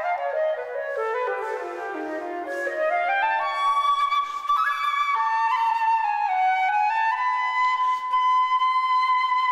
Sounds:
musical instrument, music, flute

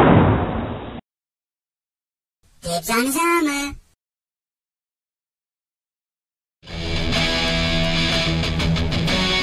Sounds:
music, heavy metal, speech

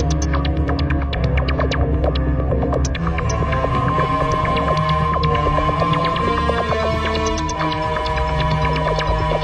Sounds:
soundtrack music, music

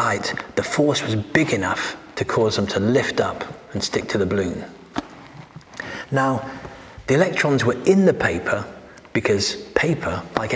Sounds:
speech

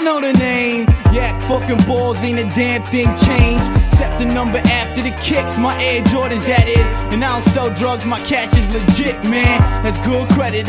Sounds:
music

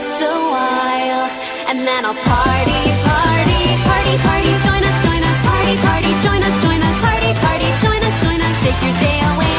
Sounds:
music

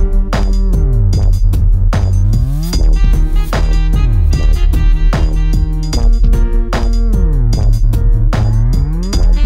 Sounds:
drum machine, music

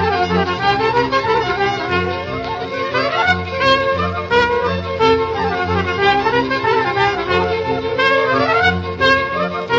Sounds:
music

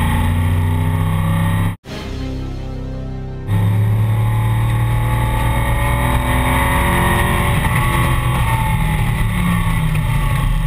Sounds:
motor vehicle (road), car, vehicle, car passing by, music

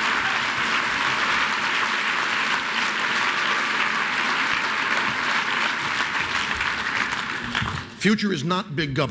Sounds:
male speech, speech, narration

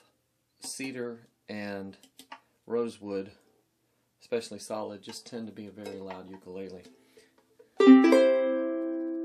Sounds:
music, speech

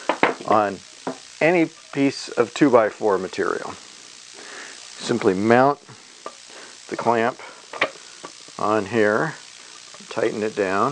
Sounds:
speech, tools

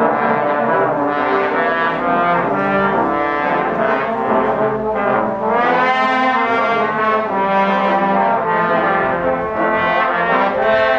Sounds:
music

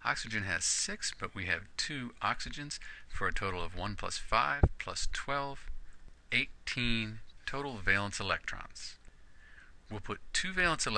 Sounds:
monologue

